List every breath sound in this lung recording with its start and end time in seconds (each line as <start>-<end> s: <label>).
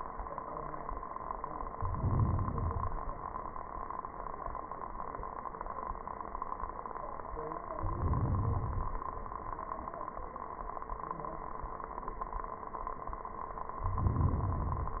1.65-2.56 s: inhalation
2.56-3.27 s: exhalation
7.79-9.09 s: inhalation
13.84-15.00 s: inhalation